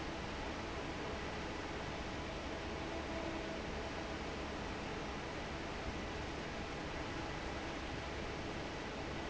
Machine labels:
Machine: fan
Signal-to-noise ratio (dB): 0 dB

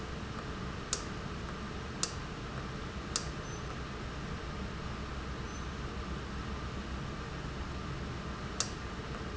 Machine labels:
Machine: valve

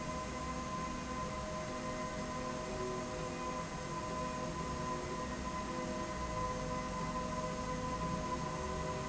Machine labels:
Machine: slide rail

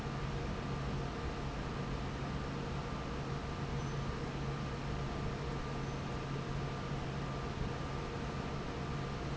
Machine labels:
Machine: fan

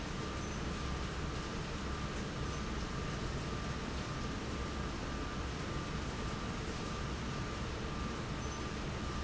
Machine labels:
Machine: fan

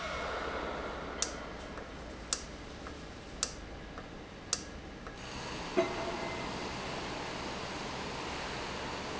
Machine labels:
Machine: valve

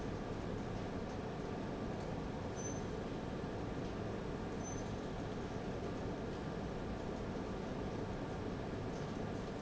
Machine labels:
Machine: fan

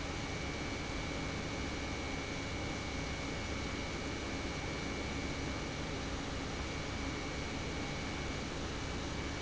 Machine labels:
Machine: pump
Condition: normal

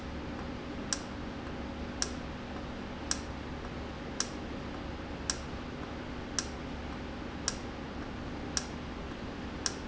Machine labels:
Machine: valve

